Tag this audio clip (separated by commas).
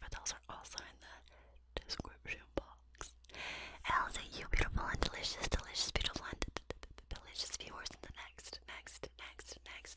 people whispering